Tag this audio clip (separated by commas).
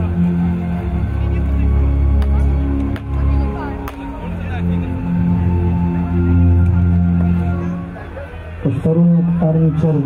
Speech, Music